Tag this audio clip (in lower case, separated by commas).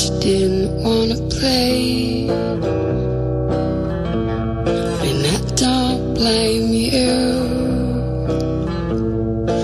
music